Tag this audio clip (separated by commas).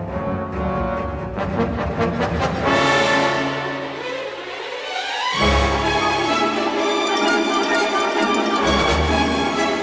Music